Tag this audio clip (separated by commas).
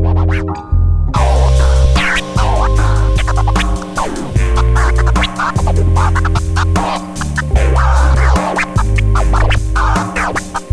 Music, Scratching (performance technique)